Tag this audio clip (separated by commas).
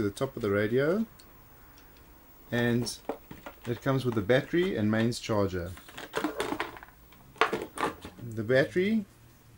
Speech